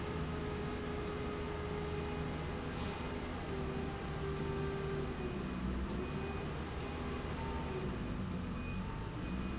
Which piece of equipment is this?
slide rail